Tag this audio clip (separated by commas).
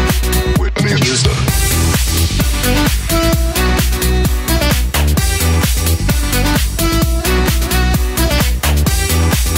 Music